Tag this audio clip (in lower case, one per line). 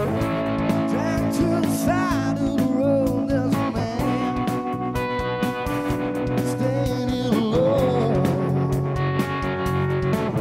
music